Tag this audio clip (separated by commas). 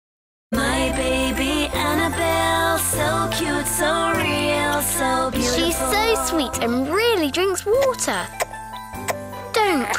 kid speaking, Music, Speech, inside a small room